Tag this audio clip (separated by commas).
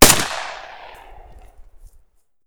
Explosion, gunfire